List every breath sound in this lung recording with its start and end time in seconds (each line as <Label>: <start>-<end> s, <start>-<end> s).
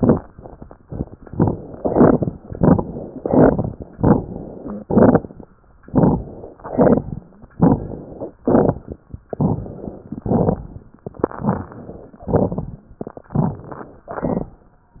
Inhalation: 1.25-1.73 s, 2.43-3.11 s, 3.95-4.75 s, 5.84-6.53 s, 7.55-8.35 s, 9.32-10.10 s, 11.27-12.18 s, 13.32-14.00 s
Exhalation: 1.75-2.32 s, 3.19-3.87 s, 4.84-5.52 s, 6.58-7.27 s, 8.43-8.96 s, 10.19-10.97 s, 12.26-12.83 s, 14.08-14.61 s
Crackles: 1.25-1.73 s, 1.75-2.32 s, 2.43-3.11 s, 3.19-3.87 s, 3.95-4.75 s, 4.84-5.52 s, 5.84-6.53 s, 6.58-7.27 s, 7.55-8.35 s, 8.43-8.96 s, 9.32-10.10 s, 10.19-10.97 s, 11.27-11.78 s, 12.26-12.83 s, 13.32-14.00 s, 14.08-14.61 s